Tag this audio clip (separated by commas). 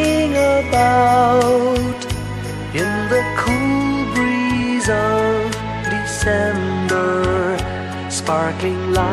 Christian music, Music, Christmas music